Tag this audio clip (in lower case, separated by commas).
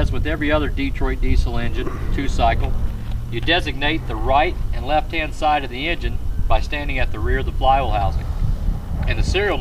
heavy engine (low frequency), speech